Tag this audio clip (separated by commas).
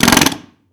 Tools